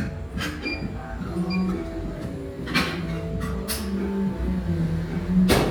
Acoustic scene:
cafe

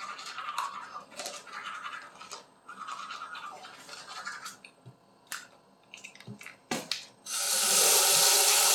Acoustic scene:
restroom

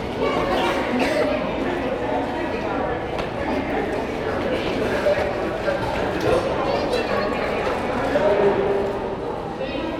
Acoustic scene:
crowded indoor space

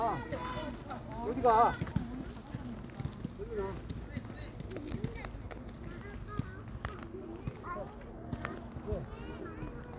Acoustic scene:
park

